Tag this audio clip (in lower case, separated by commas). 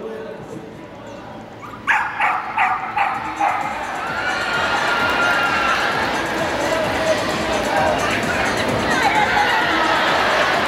music, speech, bow-wow, whimper (dog)